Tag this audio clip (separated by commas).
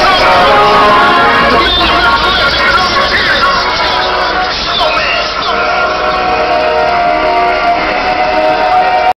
Music